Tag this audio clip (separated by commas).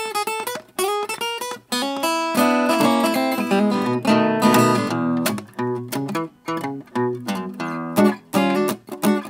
Speech, Guitar, Plucked string instrument, Musical instrument, Music